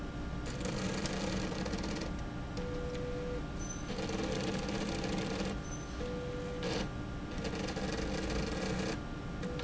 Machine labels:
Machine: slide rail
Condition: abnormal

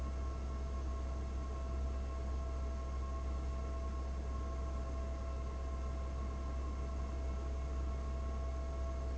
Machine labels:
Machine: fan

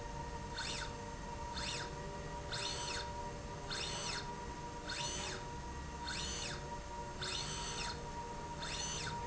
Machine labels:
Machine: slide rail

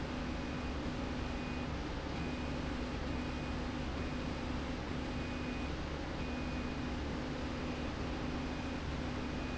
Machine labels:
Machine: slide rail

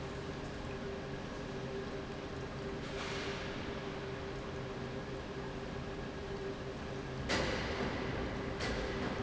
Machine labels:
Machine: pump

